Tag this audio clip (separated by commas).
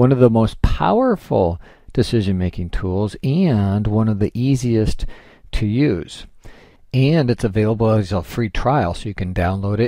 Speech